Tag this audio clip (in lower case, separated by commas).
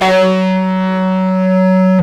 music, electric guitar, plucked string instrument, musical instrument, guitar